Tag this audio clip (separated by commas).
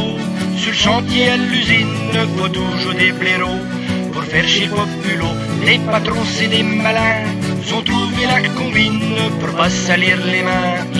Music